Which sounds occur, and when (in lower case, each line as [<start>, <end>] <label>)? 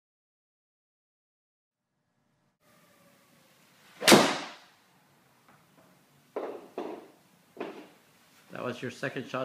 [1.76, 9.44] background noise
[4.00, 4.67] generic impact sounds
[5.45, 5.53] tick
[5.79, 5.84] tick
[6.35, 6.61] bouncing
[6.77, 7.10] bouncing
[7.58, 7.89] bouncing
[8.36, 8.80] generic impact sounds
[8.51, 9.44] male speech